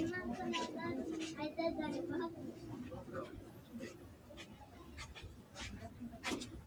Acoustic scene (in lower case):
residential area